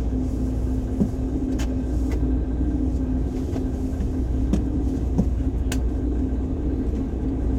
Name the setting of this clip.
bus